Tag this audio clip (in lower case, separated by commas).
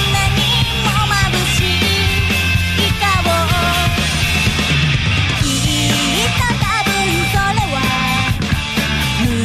music